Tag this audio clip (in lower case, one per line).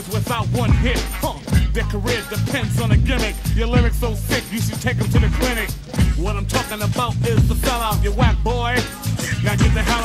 music